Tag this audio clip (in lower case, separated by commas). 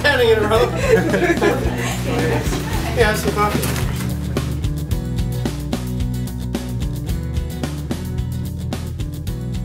soundtrack music, music, speech